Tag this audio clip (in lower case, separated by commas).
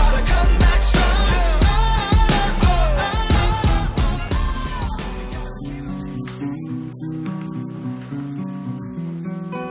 music, speech, exciting music